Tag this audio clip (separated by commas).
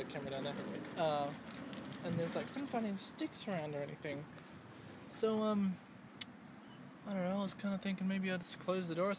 Speech